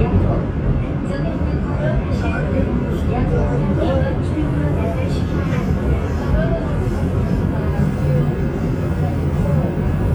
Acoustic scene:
subway train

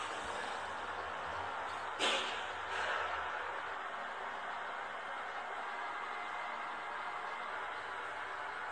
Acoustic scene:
elevator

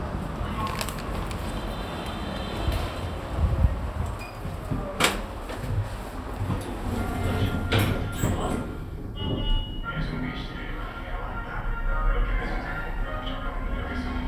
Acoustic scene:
elevator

